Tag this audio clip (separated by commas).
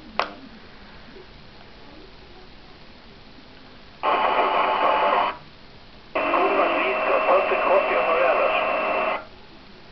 Radio, Speech